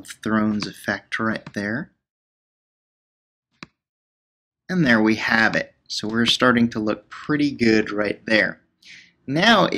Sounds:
speech

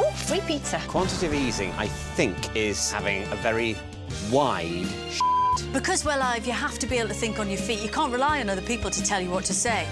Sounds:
music
speech

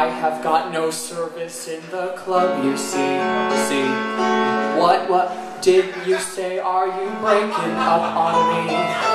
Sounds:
speech
music

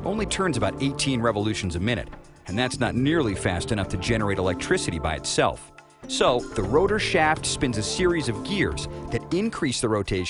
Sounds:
speech
music

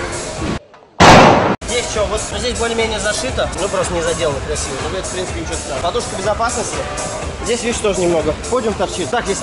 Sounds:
bouncing on trampoline

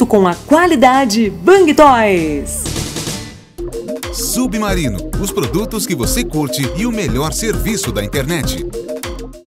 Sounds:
music
speech

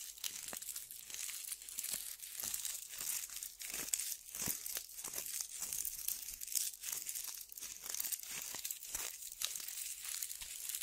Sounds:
tearing

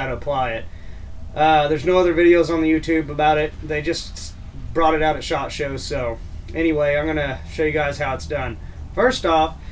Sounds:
speech

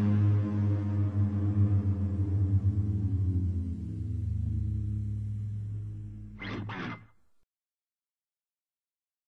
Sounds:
music

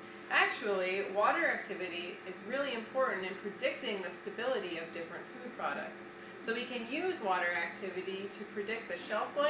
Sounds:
speech

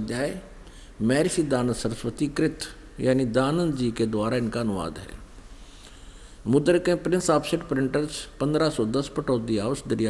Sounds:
speech

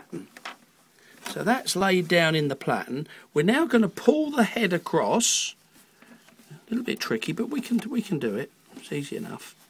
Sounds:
speech

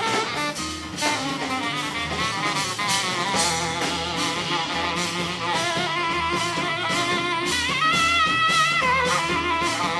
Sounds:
percussion
double bass
blues
drum kit
musical instrument
saxophone
music
drum

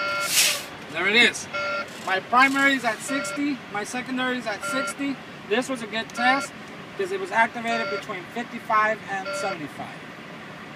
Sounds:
speech

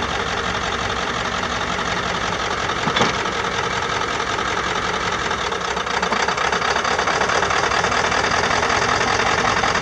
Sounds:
vehicle

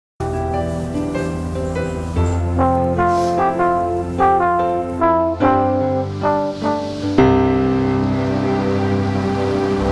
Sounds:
saxophone
brass instrument

